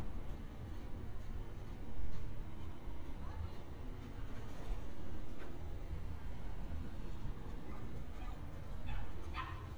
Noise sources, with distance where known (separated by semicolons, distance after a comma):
background noise